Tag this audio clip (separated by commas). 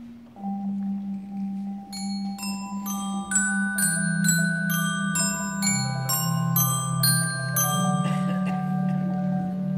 playing marimba